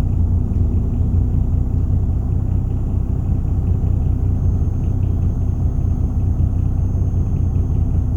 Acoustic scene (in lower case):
bus